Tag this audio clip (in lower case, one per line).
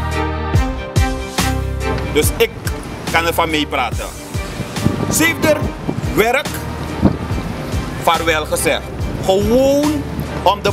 speech
music